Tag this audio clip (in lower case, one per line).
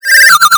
telephone
alarm
ringtone